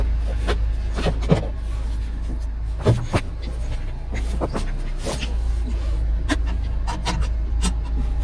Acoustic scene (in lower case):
car